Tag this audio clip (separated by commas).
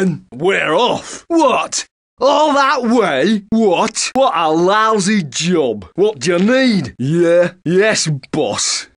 Speech